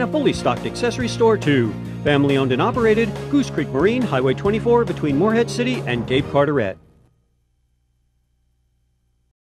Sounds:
Speech, Music

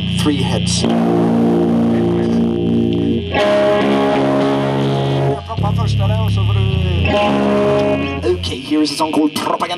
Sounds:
Music, Speech

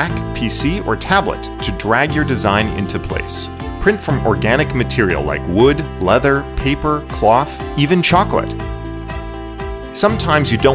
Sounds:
Speech, Music

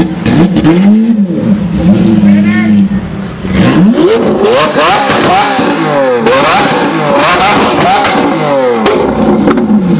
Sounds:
outside, urban or man-made, Speech, Vehicle, auto racing, Car

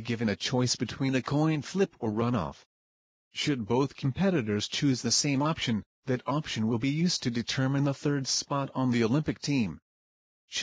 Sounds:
Speech

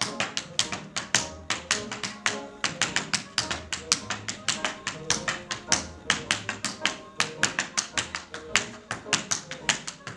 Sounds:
Music, Tap

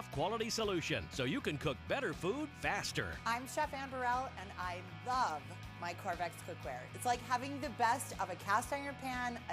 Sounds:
Speech, Music

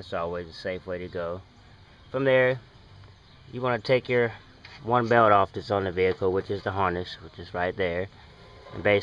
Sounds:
Speech

